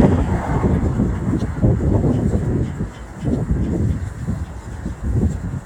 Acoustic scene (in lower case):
street